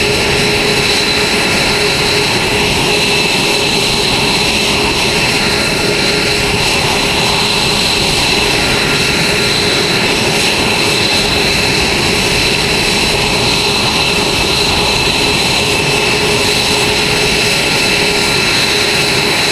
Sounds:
Fixed-wing aircraft, Aircraft, Vehicle

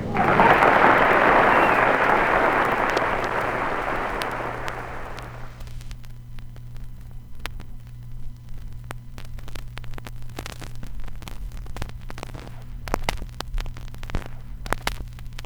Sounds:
Crackle

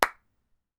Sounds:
Clapping, Hands

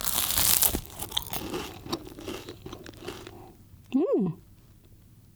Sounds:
mastication

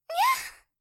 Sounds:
Respiratory sounds, Breathing, Gasp

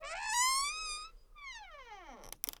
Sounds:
Squeak

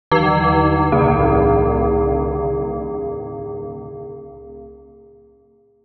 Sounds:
Bell

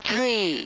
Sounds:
Speech synthesizer, Human voice, Speech

